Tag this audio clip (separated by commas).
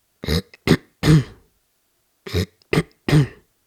Cough, Respiratory sounds